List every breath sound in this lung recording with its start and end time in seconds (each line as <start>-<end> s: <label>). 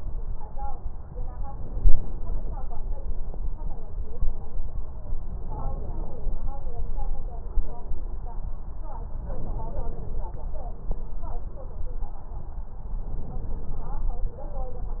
1.39-2.57 s: inhalation
5.38-6.57 s: inhalation
9.13-10.31 s: inhalation
13.07-14.25 s: inhalation